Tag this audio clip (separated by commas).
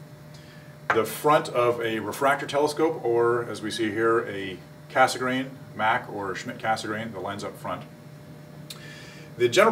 Speech